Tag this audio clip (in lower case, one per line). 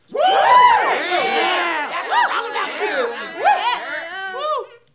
cheering
crowd
human group actions